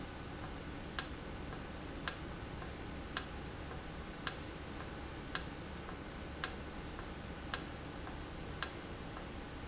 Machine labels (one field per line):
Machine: valve